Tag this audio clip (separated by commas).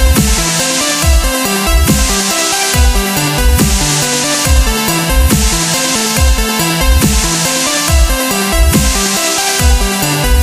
Dubstep, Electronic music, Music